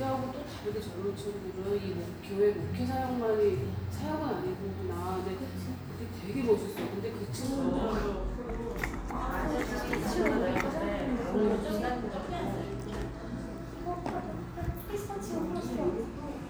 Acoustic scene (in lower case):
cafe